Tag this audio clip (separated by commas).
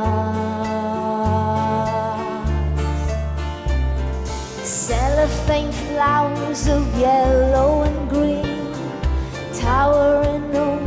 Music